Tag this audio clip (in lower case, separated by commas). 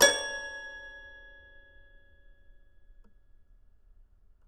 music, musical instrument, keyboard (musical)